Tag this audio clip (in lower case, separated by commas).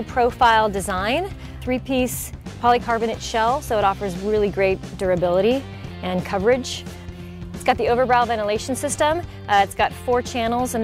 speech, music